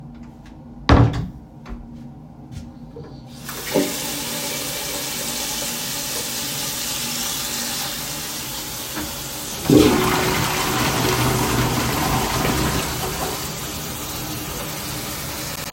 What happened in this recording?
I closed the toilet door, turned on the water tap, and flushed the toilet.